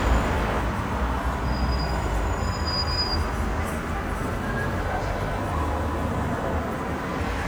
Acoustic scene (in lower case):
street